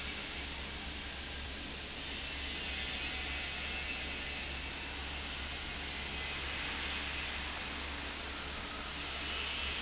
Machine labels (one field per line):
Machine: fan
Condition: abnormal